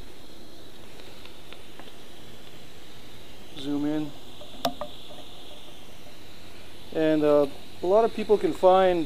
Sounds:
Speech

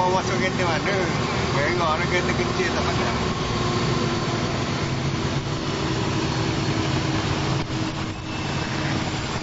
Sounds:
Boat, Speech, speedboat, Vehicle

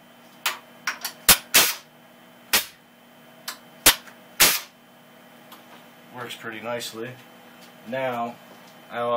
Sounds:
Speech, inside a small room

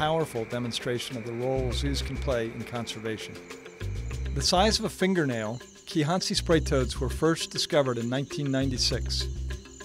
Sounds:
Music, Speech

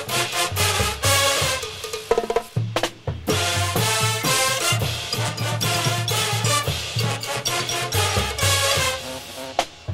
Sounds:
playing bugle

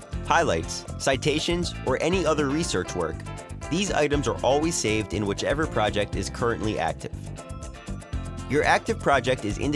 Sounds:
Music, Speech

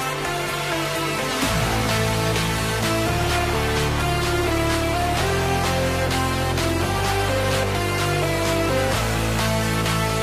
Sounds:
Music

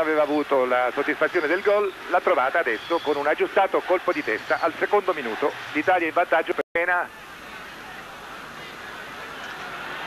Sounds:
Speech

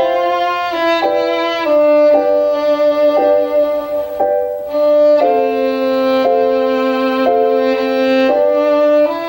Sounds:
Music, fiddle

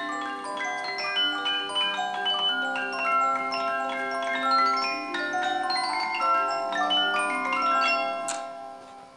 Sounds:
Music

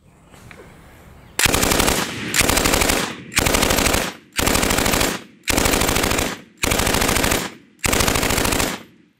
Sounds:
machine gun shooting, Machine gun, gunfire

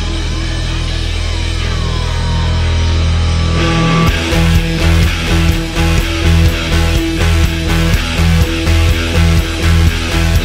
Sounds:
Music

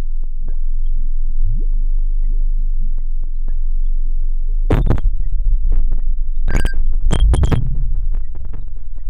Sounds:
inside a small room

